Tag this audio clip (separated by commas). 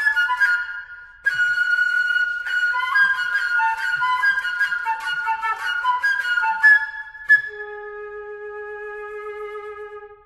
Flute, woodwind instrument